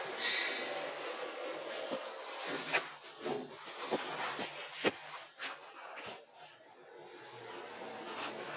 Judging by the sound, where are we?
in an elevator